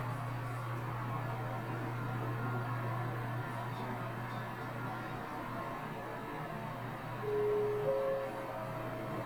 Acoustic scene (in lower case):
elevator